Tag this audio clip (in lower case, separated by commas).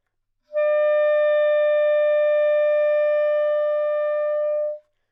music, woodwind instrument, musical instrument